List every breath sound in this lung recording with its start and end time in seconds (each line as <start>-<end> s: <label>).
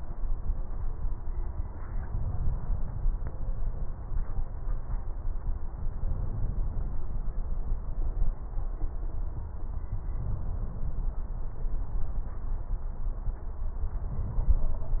2.00-2.99 s: inhalation
5.80-6.99 s: inhalation
10.12-11.18 s: inhalation
13.91-14.86 s: inhalation